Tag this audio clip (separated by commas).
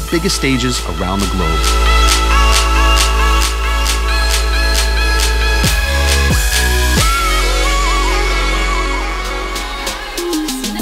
Speech, Music